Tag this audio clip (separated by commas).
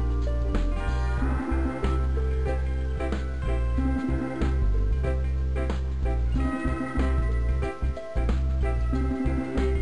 Music